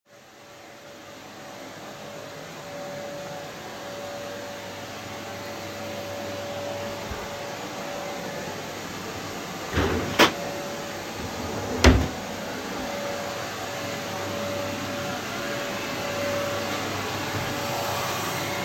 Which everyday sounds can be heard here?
vacuum cleaner, wardrobe or drawer, running water